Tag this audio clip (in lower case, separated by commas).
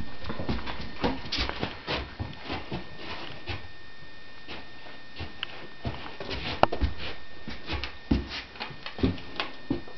animal, dog